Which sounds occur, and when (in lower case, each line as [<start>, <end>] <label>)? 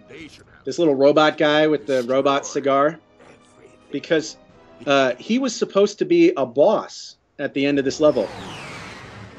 [0.00, 2.94] man speaking
[0.00, 8.23] conversation
[0.00, 9.35] background noise
[0.01, 5.64] music
[3.17, 3.73] man speaking
[3.93, 4.36] man speaking
[4.79, 7.15] man speaking
[7.37, 8.33] man speaking
[7.99, 9.35] jet engine